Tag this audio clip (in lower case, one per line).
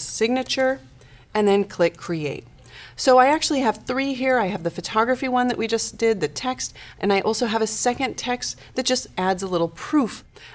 speech